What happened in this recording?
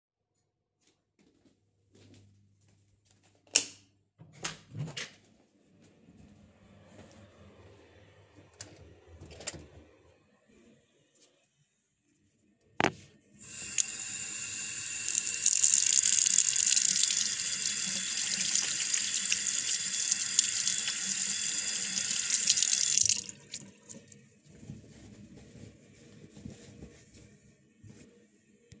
I walked with my phone towards the bathroom, turned the lights and ventilator switch on, opened the door then closed the door placed, my phone by the sink turned the sink on started washing my hands then stopped the sink lastly I dried my hands.